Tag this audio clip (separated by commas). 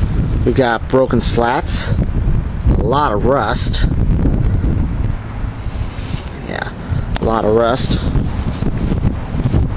Wind, Speech